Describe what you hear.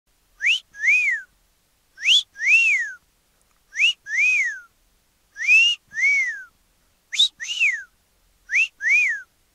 Male whistling loudly